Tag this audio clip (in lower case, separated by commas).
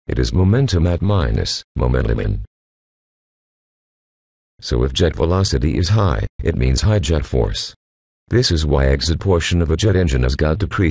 speech, speech synthesizer